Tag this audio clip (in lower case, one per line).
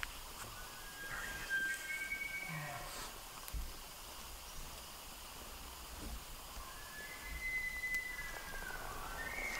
elk bugling